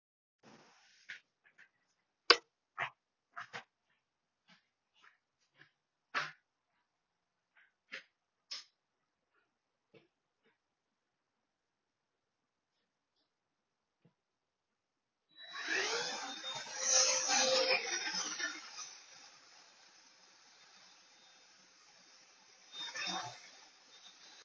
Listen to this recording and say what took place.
I was using my study table but I felt more dirty so I gone to store room and then switched on the light. Finally, swtiched on the vacuum cleaner and then started to clean.